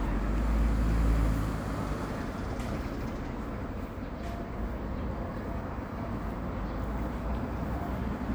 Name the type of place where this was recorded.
residential area